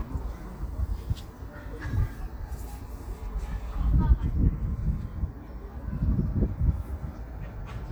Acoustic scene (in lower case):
residential area